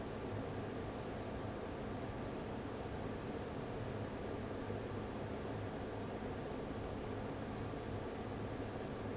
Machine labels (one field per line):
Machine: fan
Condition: abnormal